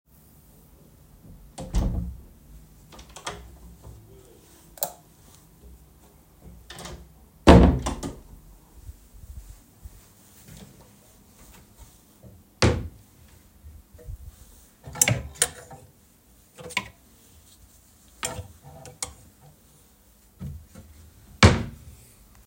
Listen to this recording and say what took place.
I opened the door, turned on the light, closed the door, opened the wardrobe, took the hanger, hung the hanger, closed the wardrobe